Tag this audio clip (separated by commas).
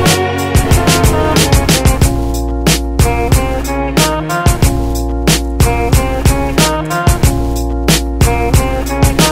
Music